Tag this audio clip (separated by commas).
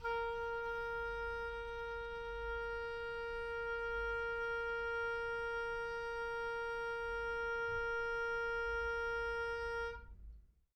Wind instrument, Music, Musical instrument